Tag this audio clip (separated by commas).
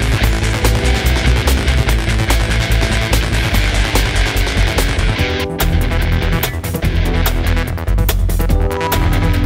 Video game music, Music